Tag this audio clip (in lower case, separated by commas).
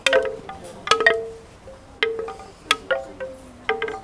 chime, wind chime, bell, wood